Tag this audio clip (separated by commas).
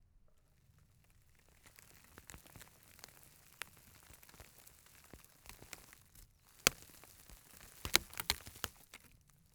Crackle, Crack